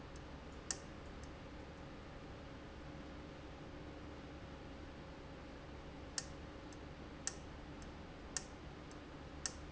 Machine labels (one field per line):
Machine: valve